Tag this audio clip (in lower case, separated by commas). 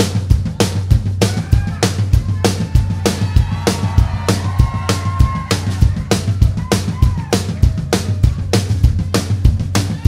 snare drum, drum kit, percussion, bass drum, rimshot, drum